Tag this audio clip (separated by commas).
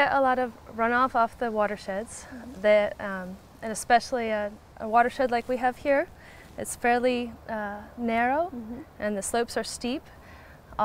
Speech